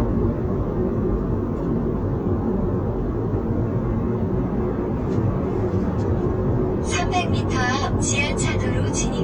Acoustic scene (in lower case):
car